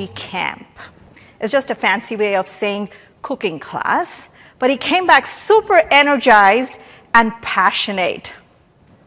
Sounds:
Speech

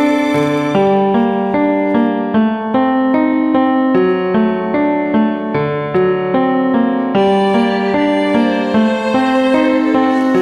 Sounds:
Music

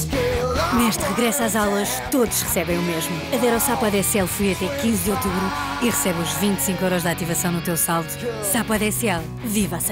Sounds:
Music, Speech

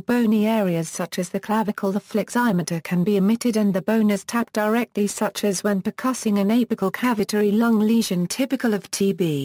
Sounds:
Speech

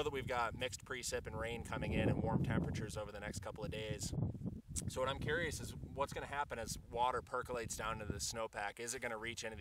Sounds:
Speech

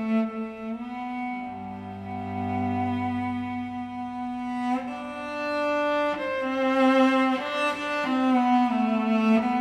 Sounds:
Violin, Music

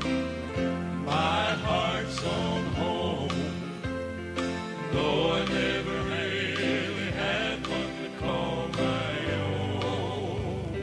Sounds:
Male singing, Music, Choir

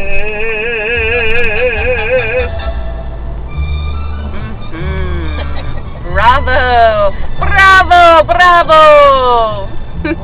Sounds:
Classical music, Music, Speech

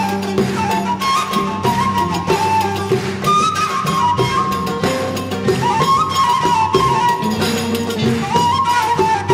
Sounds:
Music, Orchestra, Percussion

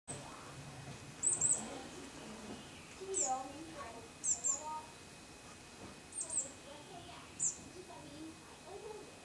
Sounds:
black capped chickadee calling

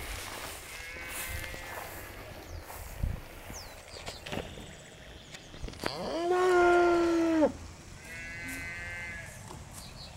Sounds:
livestock, bovinae, Moo

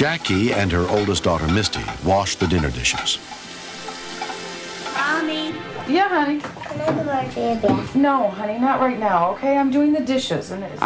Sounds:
faucet, Sizzle, Water

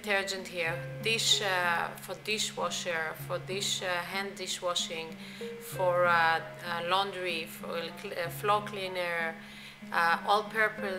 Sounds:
Speech, Music

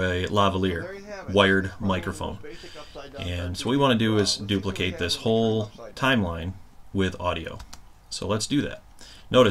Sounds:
Speech

